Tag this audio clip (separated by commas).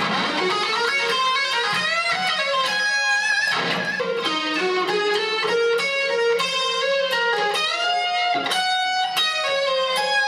Music, Plucked string instrument, Musical instrument, Guitar